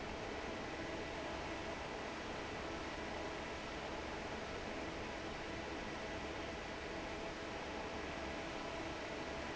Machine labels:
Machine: fan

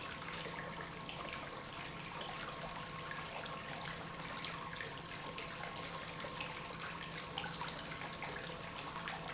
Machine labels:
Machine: pump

